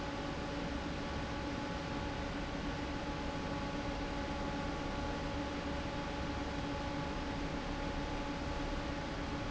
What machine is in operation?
fan